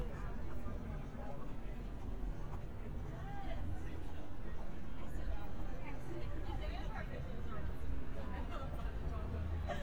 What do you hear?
person or small group talking